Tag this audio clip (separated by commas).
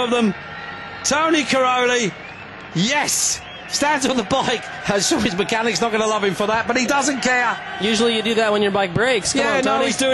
Speech